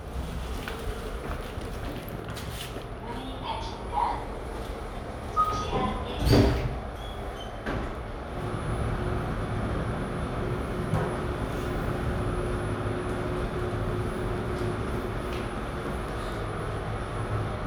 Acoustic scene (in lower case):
elevator